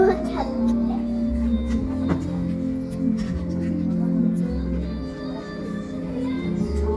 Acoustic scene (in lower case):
crowded indoor space